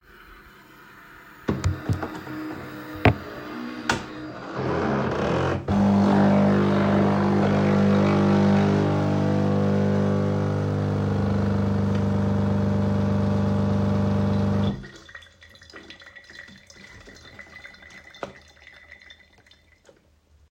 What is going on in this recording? My coffe machine is making espresso for me